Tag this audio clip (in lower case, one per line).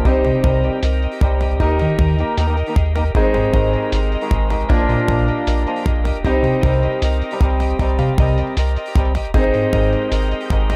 music